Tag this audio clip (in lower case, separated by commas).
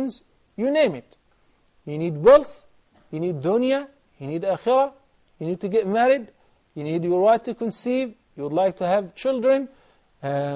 speech